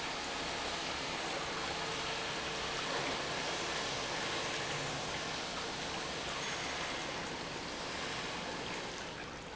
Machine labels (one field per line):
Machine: pump